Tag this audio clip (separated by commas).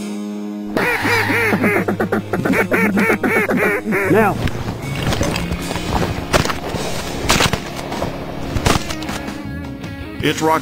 Music, Speech